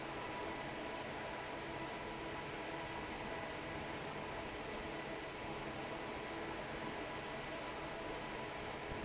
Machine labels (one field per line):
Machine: fan